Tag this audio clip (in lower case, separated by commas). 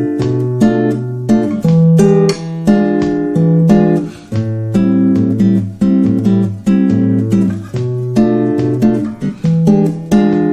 music, plucked string instrument, acoustic guitar, music of latin america, musical instrument, guitar